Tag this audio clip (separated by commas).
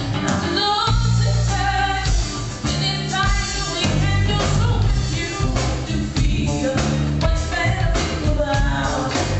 Music